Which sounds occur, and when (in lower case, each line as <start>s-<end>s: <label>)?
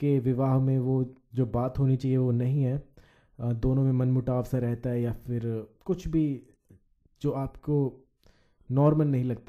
0.0s-1.1s: male speech
0.0s-9.4s: background noise
1.4s-2.9s: male speech
3.0s-3.4s: breathing
3.4s-5.7s: male speech
5.8s-6.6s: male speech
6.7s-6.8s: breathing
7.3s-8.1s: male speech
8.3s-8.7s: breathing
8.6s-9.4s: male speech